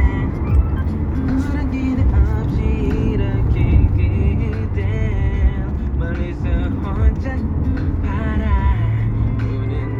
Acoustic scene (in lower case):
car